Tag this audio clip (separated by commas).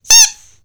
Squeak